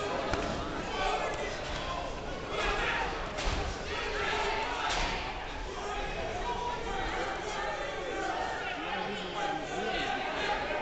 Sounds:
inside a large room or hall, speech

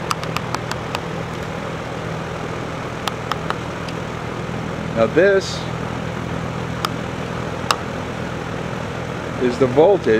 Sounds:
speech

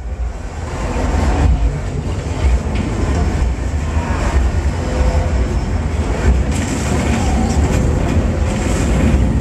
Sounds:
auto racing, traffic noise, car, vehicle

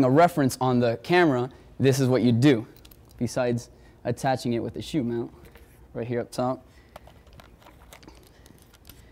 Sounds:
speech

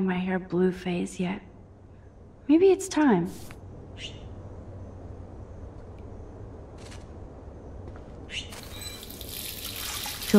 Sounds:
water, water tap, sink (filling or washing)

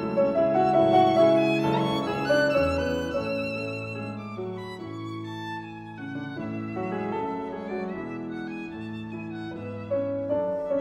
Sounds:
fiddle, music, musical instrument

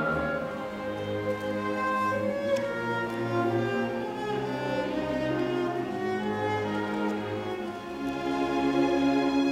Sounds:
double bass, bowed string instrument, cello, fiddle

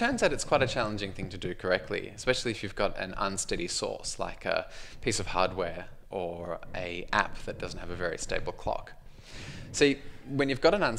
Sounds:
speech

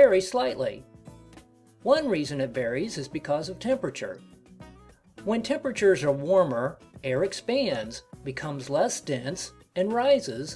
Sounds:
music, speech

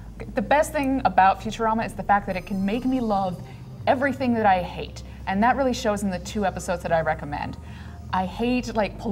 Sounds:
speech, music

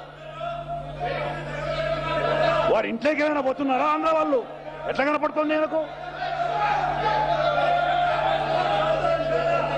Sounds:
male speech, speech, monologue

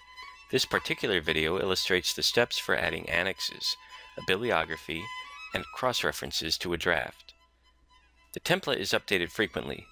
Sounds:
music, speech

